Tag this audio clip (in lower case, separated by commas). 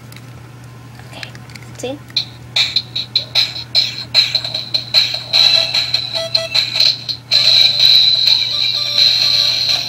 inside a small room, music, speech